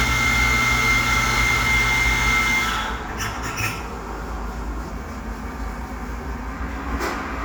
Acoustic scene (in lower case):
cafe